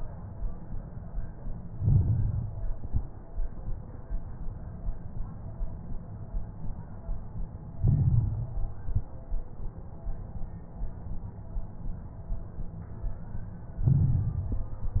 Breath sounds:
1.71-2.62 s: inhalation
1.71-2.62 s: crackles
2.70-3.11 s: exhalation
2.70-3.11 s: crackles
7.81-8.61 s: inhalation
7.81-8.61 s: crackles
8.70-9.12 s: exhalation
8.70-9.12 s: crackles
13.78-14.57 s: inhalation
13.78-14.57 s: crackles
14.57-14.99 s: exhalation
14.57-14.99 s: crackles

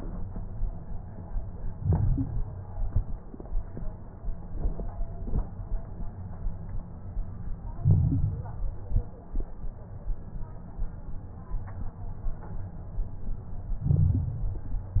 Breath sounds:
1.75-2.54 s: inhalation
1.75-2.54 s: crackles
2.77-3.15 s: exhalation
2.77-3.15 s: crackles
7.77-8.74 s: inhalation
7.77-8.74 s: crackles
8.85-9.23 s: exhalation
8.85-9.23 s: crackles
13.79-14.76 s: inhalation
13.79-14.76 s: crackles

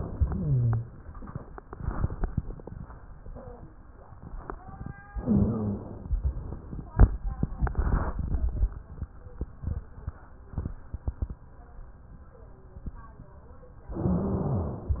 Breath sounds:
0.00-0.93 s: exhalation
0.00-0.93 s: rhonchi
5.18-6.11 s: inhalation
5.20-6.05 s: rhonchi
6.09-6.43 s: exhalation
6.09-6.43 s: rhonchi
13.96-14.82 s: inhalation
13.96-14.82 s: rhonchi

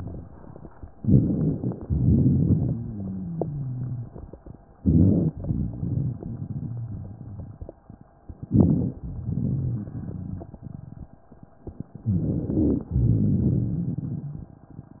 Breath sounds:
0.99-1.73 s: crackles
1.01-1.77 s: inhalation
1.86-2.75 s: exhalation
1.86-2.75 s: crackles
2.75-4.04 s: rhonchi
4.80-5.29 s: inhalation
4.80-5.29 s: rhonchi
5.39-7.65 s: exhalation
5.39-7.65 s: crackles
8.48-8.98 s: inhalation
8.48-8.98 s: crackles
9.01-11.04 s: exhalation
9.01-11.04 s: crackles
12.07-12.88 s: inhalation
12.07-12.88 s: rhonchi
12.98-14.48 s: exhalation
12.98-14.48 s: rhonchi

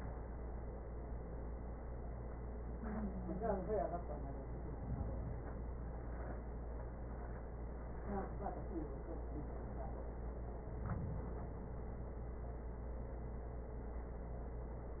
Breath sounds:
4.42-5.92 s: inhalation
10.39-11.89 s: inhalation

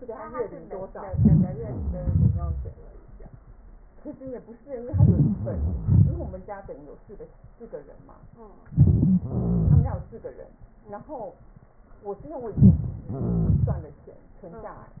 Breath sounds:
1.04-1.49 s: inhalation
2.01-2.72 s: exhalation
4.89-5.37 s: inhalation
5.33-5.86 s: wheeze
5.87-6.38 s: exhalation
8.74-9.13 s: inhalation
9.23-9.72 s: wheeze
9.34-10.10 s: exhalation
12.48-12.83 s: inhalation
13.16-13.94 s: wheeze
13.20-13.94 s: exhalation

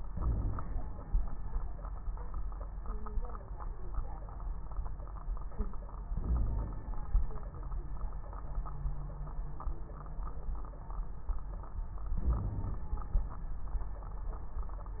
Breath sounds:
0.13-0.66 s: inhalation
0.13-0.66 s: crackles
6.12-6.90 s: inhalation
6.24-6.90 s: wheeze
12.20-12.86 s: inhalation
12.20-12.86 s: wheeze

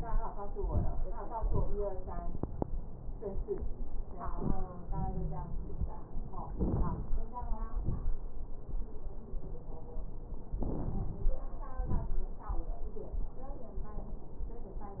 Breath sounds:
4.84-6.18 s: wheeze
6.54-7.14 s: inhalation
6.54-7.14 s: crackles
7.83-8.24 s: exhalation
7.83-8.24 s: crackles
10.52-11.37 s: inhalation
10.52-11.37 s: crackles
11.81-12.26 s: exhalation
11.81-12.26 s: crackles

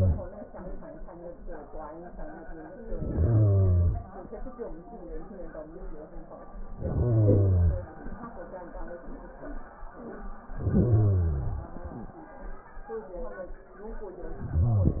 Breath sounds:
2.74-4.14 s: inhalation
6.72-7.93 s: inhalation
10.45-11.66 s: inhalation
14.36-15.00 s: inhalation

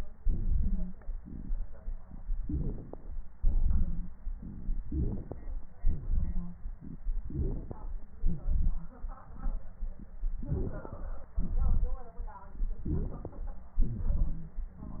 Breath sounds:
0.19-0.99 s: inhalation
0.59-0.96 s: wheeze
1.16-1.90 s: exhalation
2.43-3.11 s: inhalation
3.44-4.25 s: exhalation
3.71-4.12 s: wheeze
4.84-5.66 s: inhalation
4.84-5.66 s: crackles
5.79-6.61 s: exhalation
6.29-6.58 s: wheeze
7.28-7.97 s: inhalation
7.28-7.97 s: crackles
8.19-8.99 s: exhalation
8.22-8.40 s: wheeze
8.75-8.93 s: wheeze
10.42-11.34 s: inhalation
10.42-11.34 s: crackles
11.35-12.30 s: exhalation
12.87-13.82 s: inhalation
12.87-13.82 s: crackles
13.85-14.56 s: exhalation

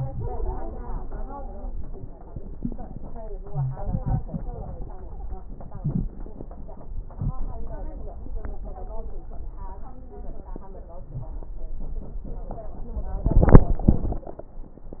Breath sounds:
1.00-1.79 s: stridor
3.42-3.83 s: wheeze
3.42-4.90 s: inhalation
3.42-4.90 s: crackles
5.53-6.35 s: inhalation
5.53-6.35 s: crackles
6.92-7.75 s: inhalation
6.92-7.75 s: crackles
8.30-9.34 s: stridor
13.00-14.65 s: inhalation
13.00-14.65 s: crackles

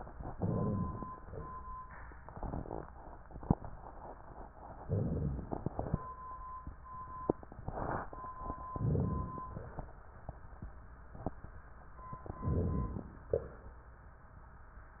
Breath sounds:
0.32-1.04 s: inhalation
0.32-1.04 s: rhonchi
0.34-1.05 s: inhalation
1.04-1.63 s: exhalation
4.84-5.47 s: inhalation
4.86-5.47 s: rhonchi
5.48-6.11 s: exhalation
5.48-6.11 s: crackles
8.73-9.44 s: inhalation
8.73-9.44 s: rhonchi
9.48-10.06 s: exhalation
12.47-13.30 s: rhonchi
13.35-13.79 s: exhalation

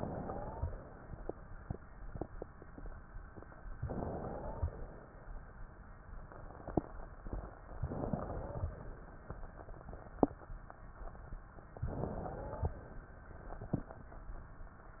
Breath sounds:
0.14-0.68 s: wheeze
3.78-4.84 s: inhalation
3.80-4.78 s: wheeze
7.78-8.76 s: inhalation
7.80-8.78 s: wheeze
11.80-12.78 s: inhalation
11.80-12.78 s: wheeze

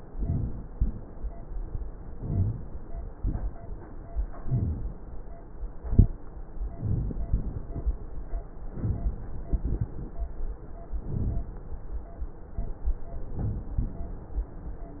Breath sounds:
0.07-0.60 s: inhalation
2.17-2.70 s: inhalation
3.19-3.72 s: inhalation
3.19-3.67 s: crackles
4.46-4.98 s: inhalation
6.72-7.26 s: exhalation
6.75-7.22 s: crackles
11.06-11.63 s: inhalation
11.08-11.55 s: crackles
13.34-13.87 s: inhalation
13.34-13.81 s: crackles
13.36-13.85 s: inhalation

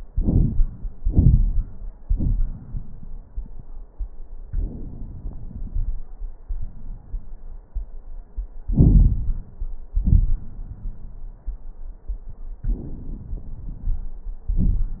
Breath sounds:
0.05-0.70 s: crackles
0.95-1.84 s: crackles
0.97-1.86 s: inhalation
1.99-3.28 s: exhalation
1.99-3.28 s: crackles
4.47-6.05 s: inhalation
4.47-6.05 s: crackles
6.49-7.61 s: exhalation
6.49-7.61 s: crackles
8.67-9.79 s: inhalation
8.67-9.79 s: crackles
9.97-11.26 s: exhalation
9.97-11.26 s: crackles
12.64-14.15 s: inhalation
12.64-14.15 s: crackles
14.44-15.00 s: exhalation
14.44-15.00 s: crackles

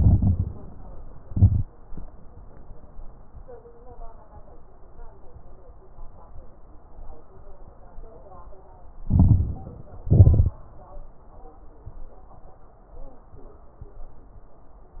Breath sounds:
0.00-0.58 s: inhalation
0.00-0.58 s: crackles
1.20-1.78 s: exhalation
1.20-1.78 s: crackles
9.06-9.93 s: inhalation
9.06-9.93 s: crackles
10.02-10.62 s: exhalation
10.02-10.62 s: crackles

